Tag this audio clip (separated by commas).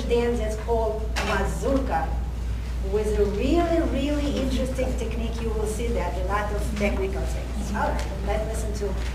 Speech